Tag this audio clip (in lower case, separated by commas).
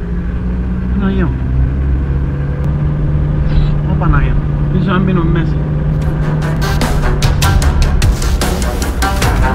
music, speech